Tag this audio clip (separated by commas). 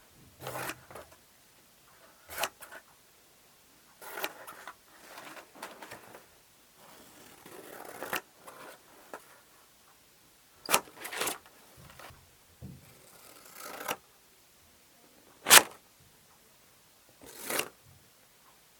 Domestic sounds, Scissors